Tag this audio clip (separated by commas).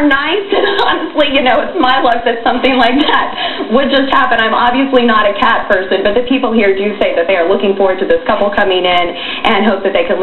Speech